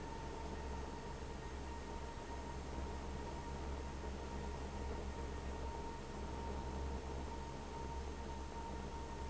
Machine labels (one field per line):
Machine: fan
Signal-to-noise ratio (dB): 6 dB